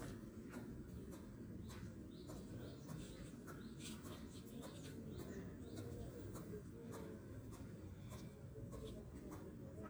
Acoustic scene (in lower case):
park